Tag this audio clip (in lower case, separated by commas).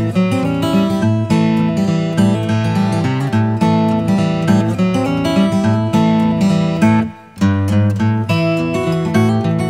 acoustic guitar, music